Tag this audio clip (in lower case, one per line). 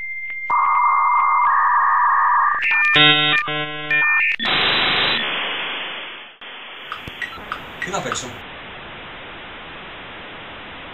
speech
music